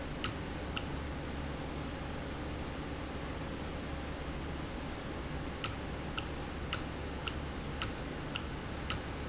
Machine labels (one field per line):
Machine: valve